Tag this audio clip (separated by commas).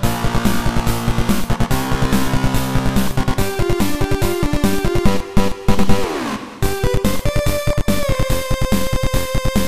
Music